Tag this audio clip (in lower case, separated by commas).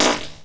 fart